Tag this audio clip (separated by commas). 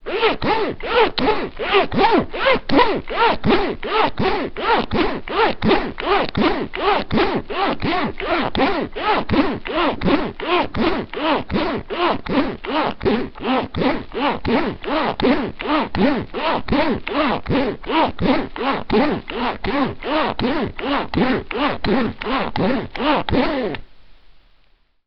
Zipper (clothing), home sounds